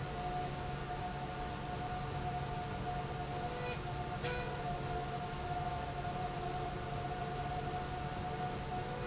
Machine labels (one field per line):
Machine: slide rail